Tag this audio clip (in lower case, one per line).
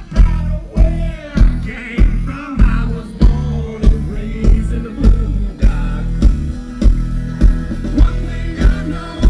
country
music